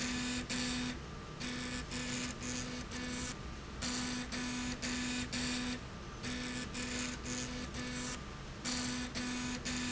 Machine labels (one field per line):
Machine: slide rail